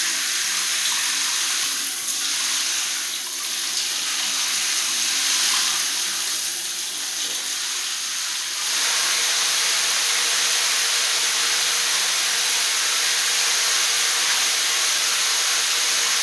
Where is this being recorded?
in a restroom